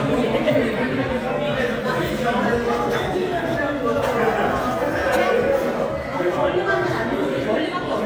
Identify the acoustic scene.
restaurant